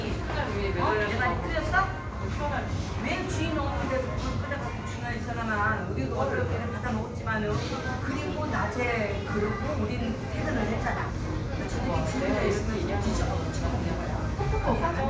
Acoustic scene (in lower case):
crowded indoor space